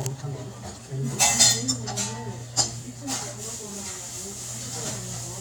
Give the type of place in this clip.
restaurant